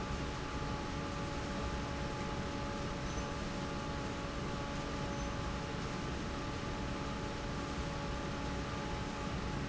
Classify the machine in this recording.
fan